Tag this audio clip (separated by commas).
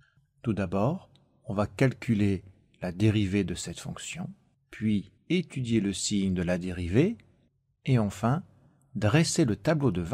typing on typewriter